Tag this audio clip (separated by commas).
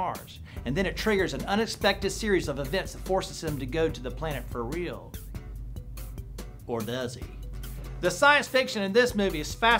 Music, Speech